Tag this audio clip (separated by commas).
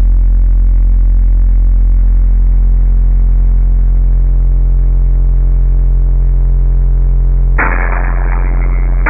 Music